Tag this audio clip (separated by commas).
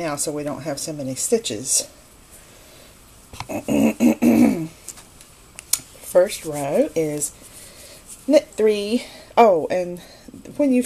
inside a small room, Speech